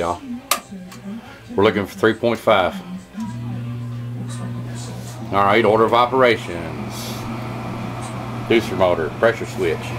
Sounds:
speech, music

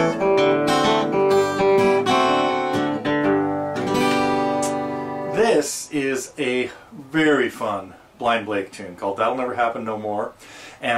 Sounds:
speech, guitar, acoustic guitar, musical instrument, strum, plucked string instrument, music

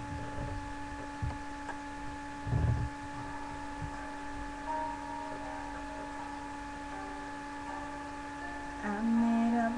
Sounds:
female singing, music

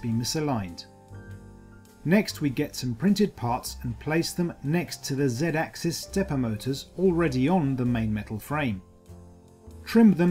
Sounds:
speech, music

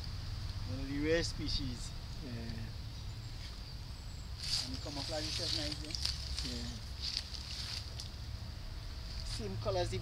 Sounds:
speech

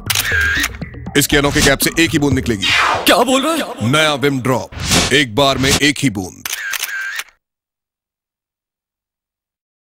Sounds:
speech, music

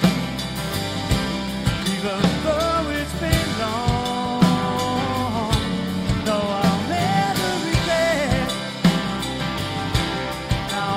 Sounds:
music, blues

